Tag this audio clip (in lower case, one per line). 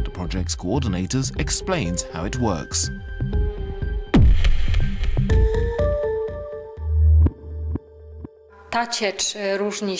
speech
music